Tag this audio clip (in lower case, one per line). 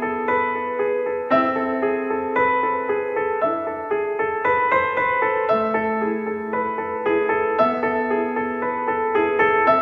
music